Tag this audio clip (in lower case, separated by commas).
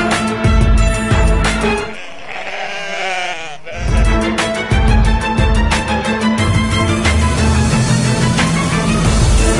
music